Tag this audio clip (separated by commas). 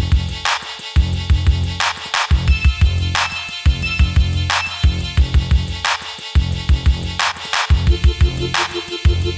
Music